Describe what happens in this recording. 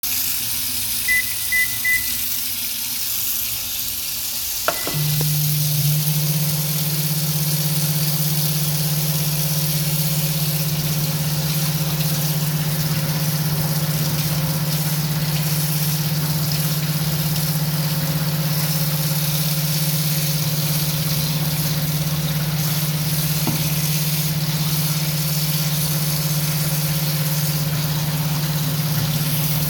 The microwave time is set and the start button is pressed. The microwave begins operating while water runs in the background.